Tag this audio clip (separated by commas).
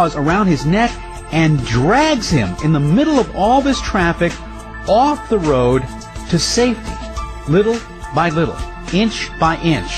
Speech, Music